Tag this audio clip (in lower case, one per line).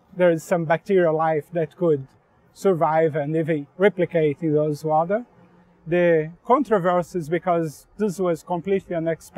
speech